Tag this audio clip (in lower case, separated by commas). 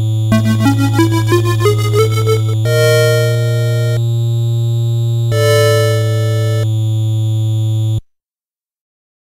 music